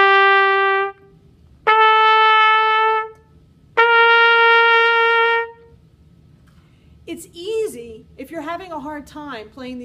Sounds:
playing cornet

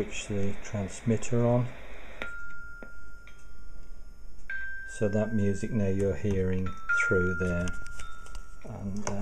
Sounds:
speech

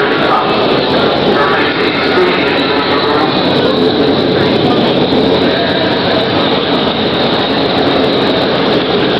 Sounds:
vehicle
motorboat
water vehicle
speech

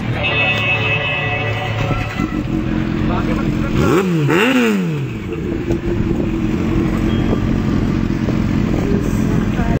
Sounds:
speech

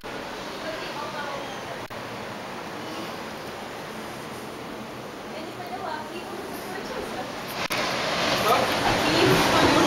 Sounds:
waves
ocean
speech

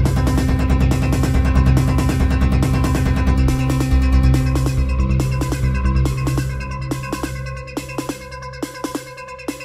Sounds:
music
drum machine

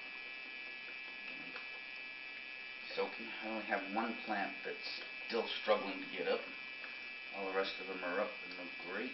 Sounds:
speech
gurgling

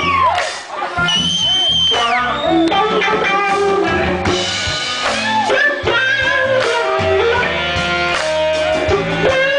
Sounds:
bass guitar
musical instrument
speech
strum
guitar
electric guitar
music

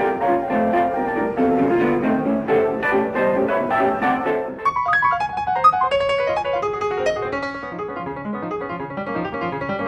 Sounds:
music

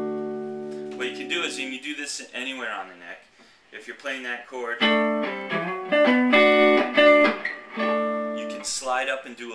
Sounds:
speech
music
musical instrument
acoustic guitar
guitar
plucked string instrument
strum
electric guitar

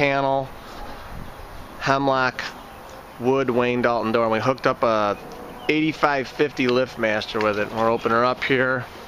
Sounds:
speech

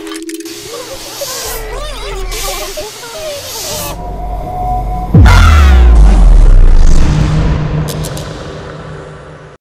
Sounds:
music

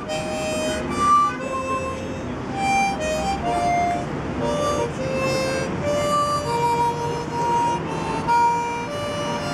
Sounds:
playing harmonica

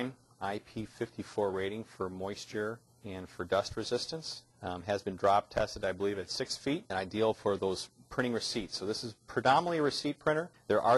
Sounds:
speech

